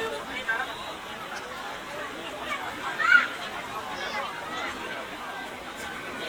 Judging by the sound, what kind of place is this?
park